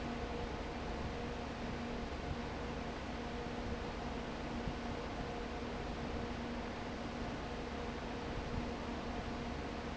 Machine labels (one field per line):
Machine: fan